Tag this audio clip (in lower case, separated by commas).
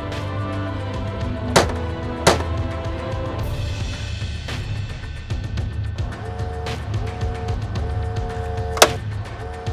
music, tools